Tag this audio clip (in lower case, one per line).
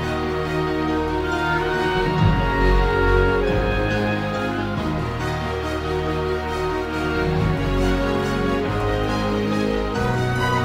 music
theme music